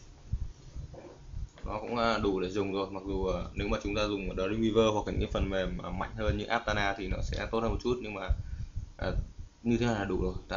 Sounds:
Speech

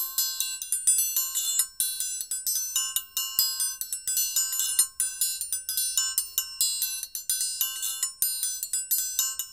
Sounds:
inside a small room, Music

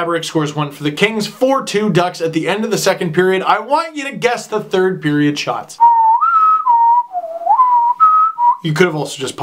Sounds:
Whistling

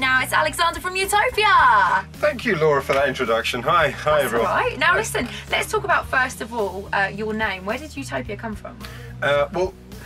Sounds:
Music, Soundtrack music, Speech

